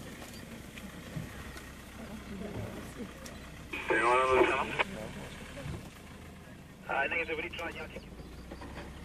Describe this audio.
Two adults males are speaking through an electronic device, and a motor vehicle is running